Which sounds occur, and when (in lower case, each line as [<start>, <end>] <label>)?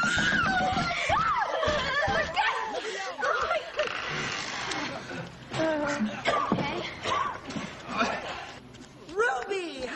[0.00, 0.89] generic impact sounds
[0.00, 2.29] shout
[0.00, 9.95] background noise
[0.45, 1.23] female speech
[0.59, 9.95] conversation
[1.05, 1.33] generic impact sounds
[1.62, 2.36] generic impact sounds
[2.33, 2.63] female speech
[2.72, 3.20] man speaking
[3.10, 3.59] hands
[3.17, 3.90] female speech
[3.71, 4.85] creak
[4.64, 4.75] hands
[4.94, 5.33] cough
[5.47, 5.71] generic impact sounds
[5.50, 6.02] female speech
[6.21, 6.48] cough
[6.23, 7.01] female speech
[6.44, 6.62] generic impact sounds
[7.00, 7.40] cough
[7.47, 7.74] breathing
[7.88, 8.55] cough
[8.16, 9.95] footsteps
[9.08, 9.95] female speech